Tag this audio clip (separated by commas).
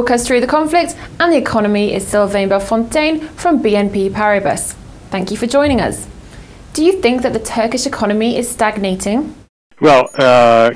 Speech